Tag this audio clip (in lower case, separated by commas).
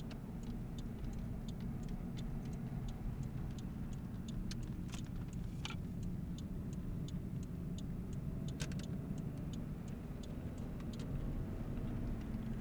car, vehicle, motor vehicle (road)